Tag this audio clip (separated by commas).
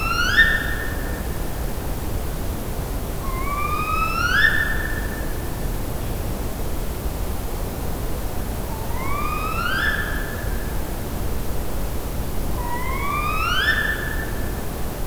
Bird, Animal, Wild animals